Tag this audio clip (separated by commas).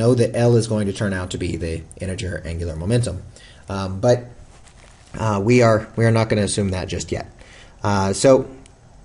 Speech